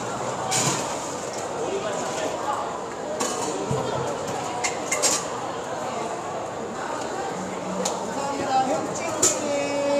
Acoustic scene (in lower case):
cafe